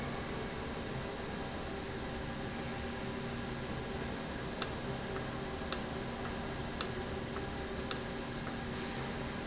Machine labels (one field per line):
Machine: valve